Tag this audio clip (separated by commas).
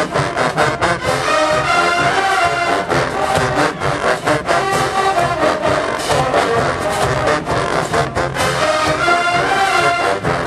Music